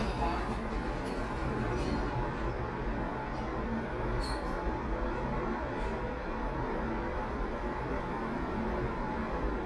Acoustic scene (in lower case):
elevator